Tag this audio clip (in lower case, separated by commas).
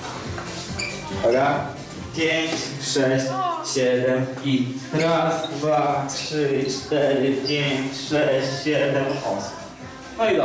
speech, footsteps, music